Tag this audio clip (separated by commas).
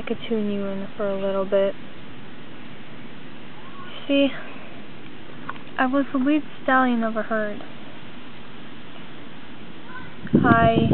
Speech